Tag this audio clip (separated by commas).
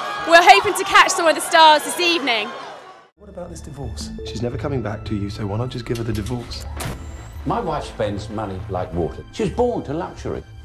Speech, Music